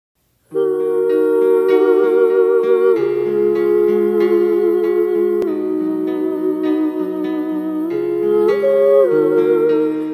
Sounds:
Lullaby, Music

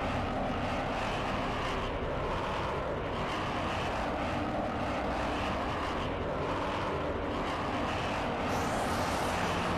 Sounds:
airplane, Aircraft

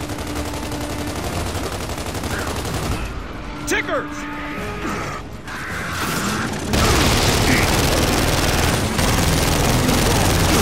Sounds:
Music, Speech

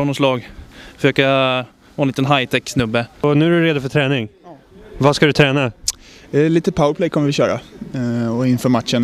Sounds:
Speech

